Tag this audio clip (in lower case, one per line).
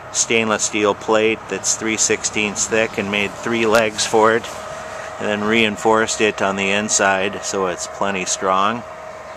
speech